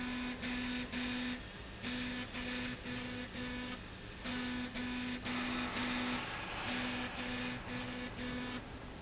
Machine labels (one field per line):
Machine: slide rail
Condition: abnormal